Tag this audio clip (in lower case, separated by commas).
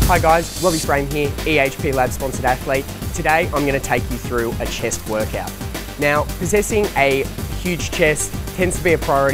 speech, music